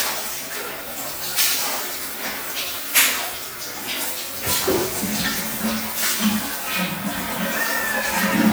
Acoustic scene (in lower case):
restroom